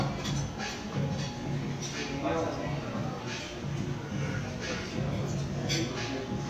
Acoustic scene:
crowded indoor space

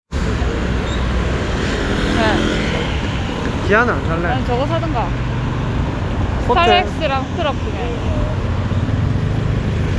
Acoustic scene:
street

